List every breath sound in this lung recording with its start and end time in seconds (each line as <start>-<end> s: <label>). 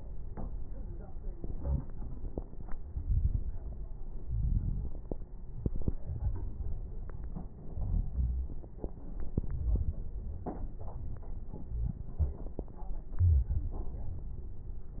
2.92-3.61 s: inhalation
2.92-3.61 s: crackles
4.20-5.00 s: exhalation
4.20-5.00 s: crackles
7.62-8.63 s: inhalation
7.62-8.63 s: crackles
13.08-13.95 s: inhalation